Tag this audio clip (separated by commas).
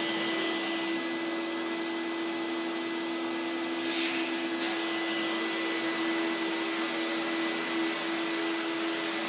Vacuum cleaner